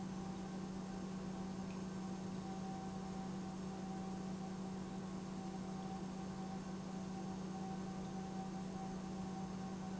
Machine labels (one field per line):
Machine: pump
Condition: normal